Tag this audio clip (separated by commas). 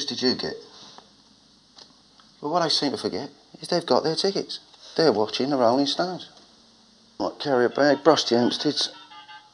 Speech